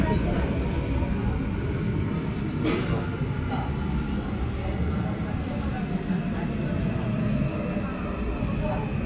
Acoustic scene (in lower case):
subway train